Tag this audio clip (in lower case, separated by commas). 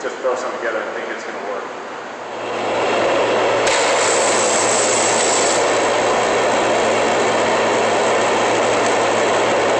speech